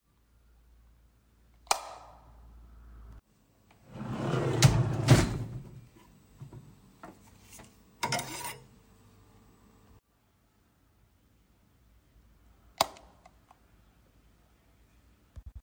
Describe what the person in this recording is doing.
I turned on the light, opened drawer, took out the knife then closed it and turned off the light.